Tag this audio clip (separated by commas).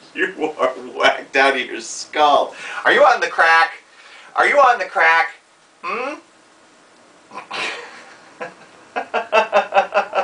Speech